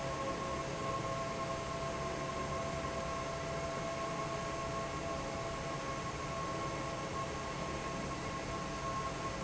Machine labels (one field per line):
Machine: fan